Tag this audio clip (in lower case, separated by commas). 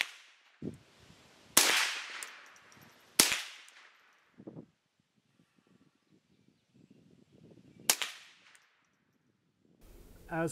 outside, rural or natural